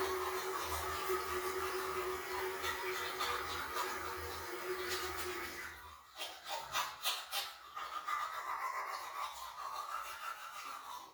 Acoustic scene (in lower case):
restroom